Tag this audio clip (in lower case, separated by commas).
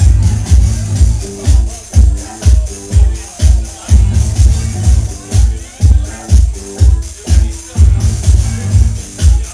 music